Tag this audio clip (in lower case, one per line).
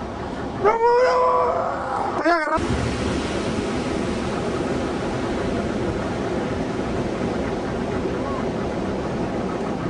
ocean
wind
wind noise (microphone)
surf